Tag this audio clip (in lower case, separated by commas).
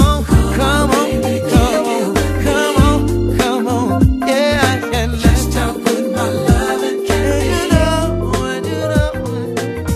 music, soul music